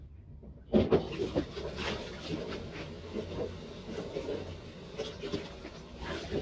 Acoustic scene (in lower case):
kitchen